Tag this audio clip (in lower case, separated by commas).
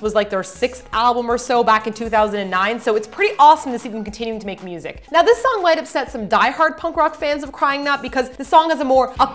music, independent music, speech